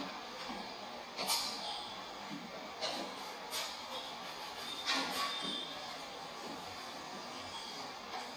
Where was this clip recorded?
in a cafe